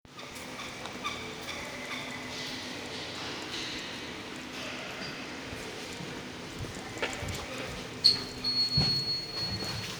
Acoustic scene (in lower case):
elevator